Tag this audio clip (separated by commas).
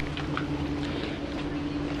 Boat, Vehicle